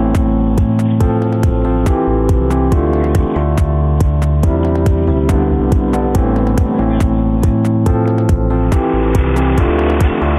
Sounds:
music

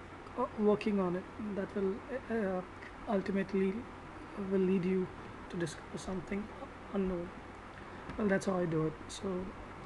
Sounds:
speech

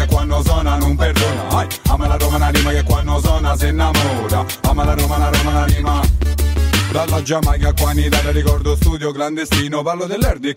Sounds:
music

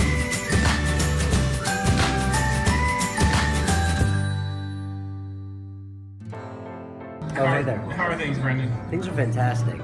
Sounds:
speech, music

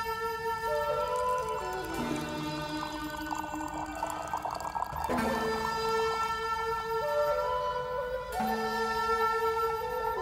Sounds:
music

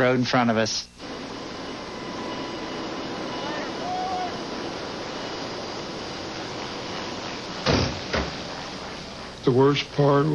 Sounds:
outside, rural or natural, speech, vehicle

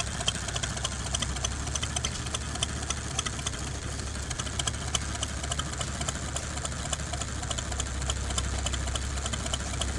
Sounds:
engine, idling

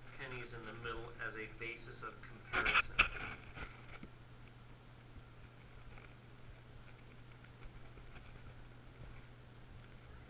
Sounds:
speech

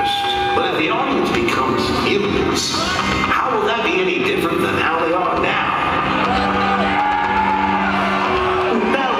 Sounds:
speech, music, cheering

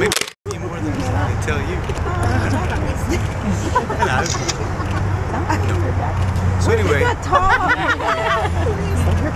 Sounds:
speech

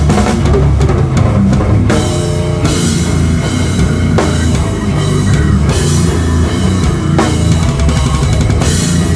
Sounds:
cymbal, hi-hat

